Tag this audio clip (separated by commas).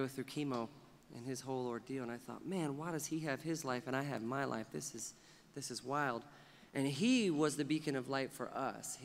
Speech